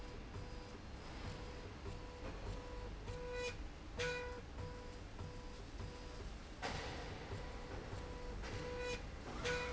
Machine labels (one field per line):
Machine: slide rail